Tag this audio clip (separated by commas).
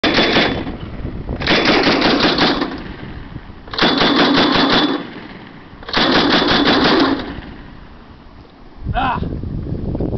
Machine gun, machine gun shooting